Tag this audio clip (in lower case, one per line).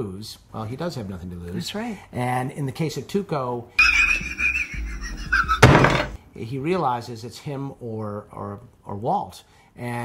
speech